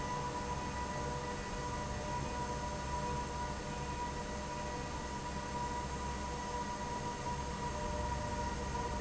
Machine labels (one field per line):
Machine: fan